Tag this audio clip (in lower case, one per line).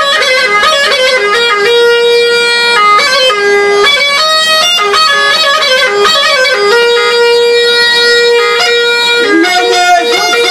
bagpipes
musical instrument
playing bagpipes